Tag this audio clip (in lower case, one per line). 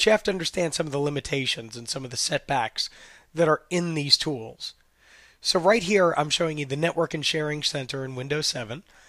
speech